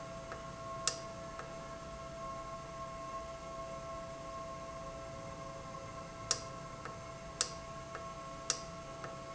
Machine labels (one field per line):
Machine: valve